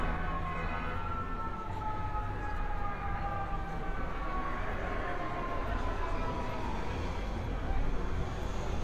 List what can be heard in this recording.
car horn, siren